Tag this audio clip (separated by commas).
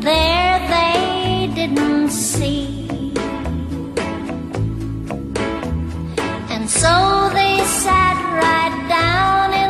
Music